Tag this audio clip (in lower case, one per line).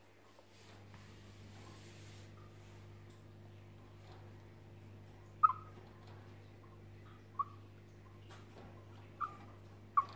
chipmunk chirping